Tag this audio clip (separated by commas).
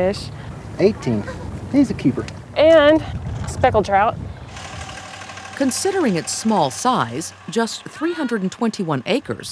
Speech